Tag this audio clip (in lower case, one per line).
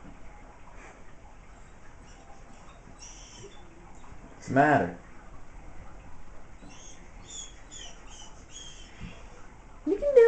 animal
pets
speech
dog